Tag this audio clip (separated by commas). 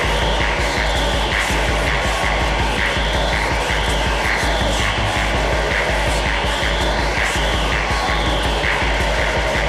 Music